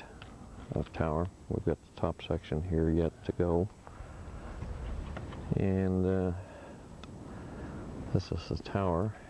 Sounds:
speech

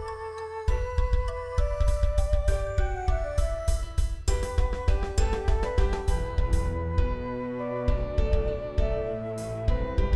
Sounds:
tender music, background music, video game music, music

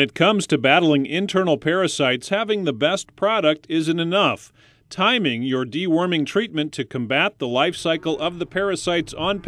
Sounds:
speech

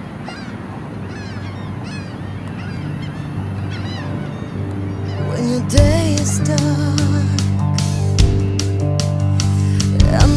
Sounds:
independent music, soul music, theme music, music, soundtrack music, background music

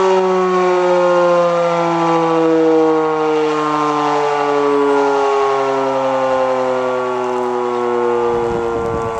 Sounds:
siren, civil defense siren

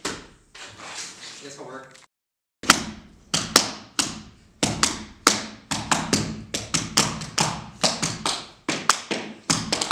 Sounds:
speech, inside a small room

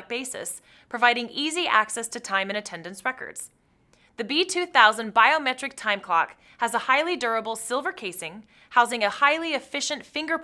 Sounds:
speech

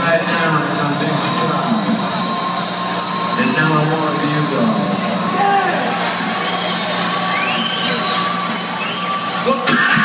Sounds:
speech, music

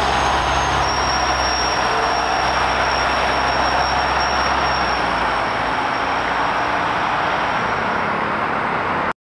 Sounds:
vehicle, bus

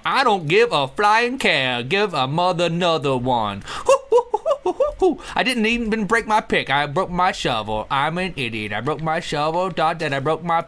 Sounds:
speech

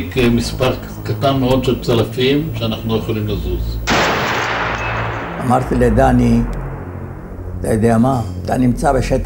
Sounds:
fusillade, speech, music

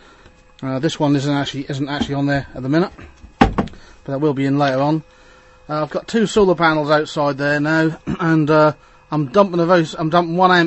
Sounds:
speech

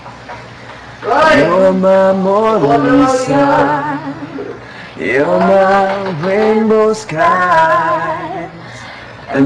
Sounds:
choir, female singing, male singing

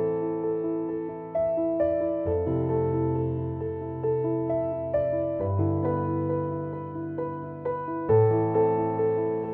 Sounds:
music

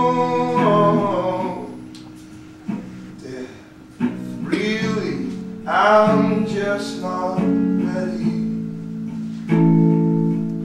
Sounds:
music, inside a small room, singing

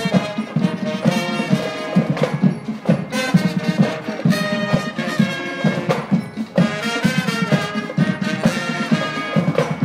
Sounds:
music, classical music

